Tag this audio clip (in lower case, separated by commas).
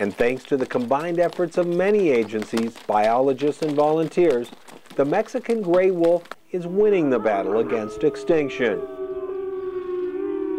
wild animals, animal, speech